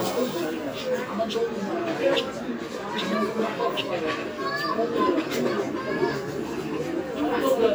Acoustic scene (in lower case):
park